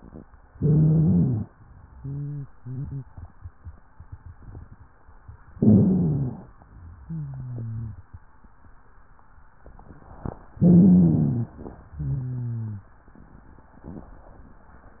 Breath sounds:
0.48-1.50 s: stridor
0.50-1.51 s: inhalation
1.95-3.09 s: exhalation
1.95-3.09 s: wheeze
5.50-6.51 s: stridor
5.52-6.53 s: inhalation
6.97-8.11 s: exhalation
7.03-8.05 s: wheeze
10.57-11.59 s: inhalation
10.60-11.61 s: stridor
11.93-12.95 s: exhalation
11.93-12.95 s: wheeze

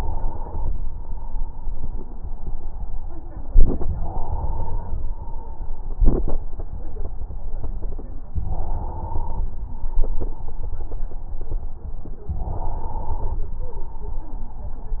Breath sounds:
0.00-0.73 s: inhalation
3.88-5.11 s: inhalation
5.01-6.05 s: exhalation
8.39-9.51 s: inhalation
9.61-10.65 s: exhalation
12.38-13.49 s: inhalation

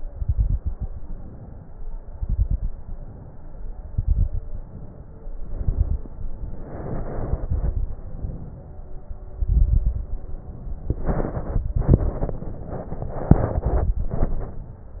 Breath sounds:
0.02-0.87 s: exhalation
0.02-0.87 s: crackles
0.89-1.80 s: inhalation
2.15-2.71 s: exhalation
2.15-2.71 s: crackles
2.79-3.70 s: inhalation
3.90-4.56 s: exhalation
3.90-4.56 s: crackles
4.60-5.38 s: inhalation
5.42-6.08 s: exhalation
5.42-6.08 s: crackles
6.14-7.08 s: inhalation
7.22-8.00 s: exhalation
7.22-8.00 s: crackles
8.10-9.04 s: inhalation
9.41-10.09 s: exhalation
9.41-10.09 s: crackles
10.15-11.27 s: inhalation
11.59-12.41 s: exhalation
11.59-12.41 s: crackles
13.36-14.17 s: exhalation
13.36-14.17 s: crackles
14.29-15.00 s: inhalation

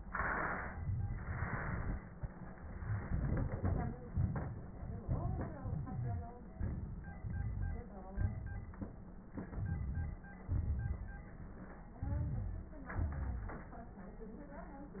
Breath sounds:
0.72-1.23 s: inhalation
1.25-2.41 s: exhalation
2.49-4.03 s: inhalation
2.49-4.03 s: crackles
4.07-5.00 s: exhalation
5.01-5.62 s: inhalation
5.01-5.62 s: crackles
5.64-6.36 s: wheeze
5.64-6.51 s: exhalation
6.52-7.26 s: inhalation
7.26-8.07 s: exhalation
7.26-8.07 s: wheeze
8.17-8.89 s: inhalation
9.31-10.41 s: inhalation
9.31-10.41 s: crackles
10.41-11.86 s: exhalation
11.91-12.71 s: inhalation
11.91-12.71 s: crackles
12.65-13.74 s: exhalation
12.71-13.74 s: crackles

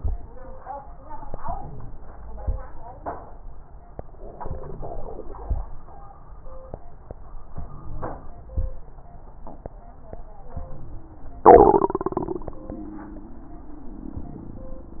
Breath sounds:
1.26-2.58 s: inhalation
1.26-2.58 s: crackles
4.31-5.62 s: inhalation
4.31-5.62 s: crackles
7.55-8.72 s: inhalation
7.55-8.72 s: wheeze
10.56-11.73 s: inhalation
10.56-11.73 s: wheeze

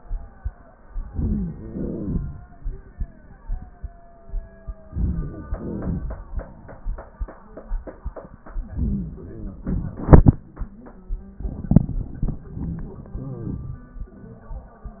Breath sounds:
1.10-2.38 s: wheeze
1.11-1.58 s: inhalation
1.59-2.56 s: exhalation
4.90-5.51 s: inhalation
4.92-6.25 s: wheeze
5.49-6.57 s: exhalation
8.65-9.20 s: inhalation
8.65-10.49 s: exhalation
8.77-9.69 s: wheeze
13.10-13.64 s: wheeze

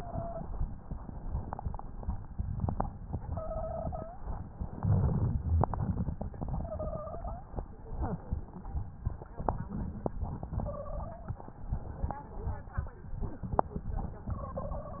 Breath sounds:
0.00-0.46 s: wheeze
3.26-4.25 s: wheeze
4.69-5.78 s: inhalation
4.69-5.78 s: crackles
6.53-7.51 s: wheeze
10.44-11.42 s: wheeze
14.27-15.00 s: wheeze

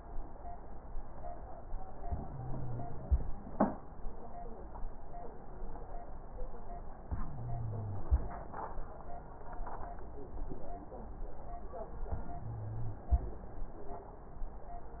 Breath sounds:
2.03-3.24 s: inhalation
2.03-3.24 s: wheeze
7.04-8.08 s: wheeze
7.04-8.25 s: inhalation
12.12-13.33 s: inhalation
12.18-13.10 s: wheeze

